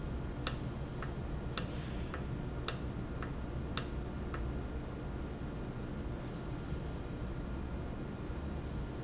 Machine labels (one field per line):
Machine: valve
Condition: normal